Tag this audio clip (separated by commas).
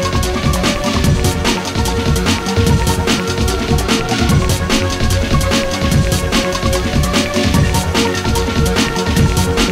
Music, Rhythm and blues